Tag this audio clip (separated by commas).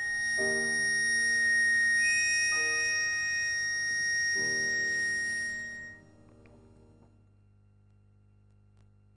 Piano, Harmonica, Music